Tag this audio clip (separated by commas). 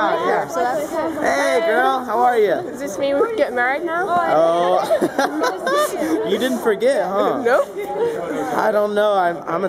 Speech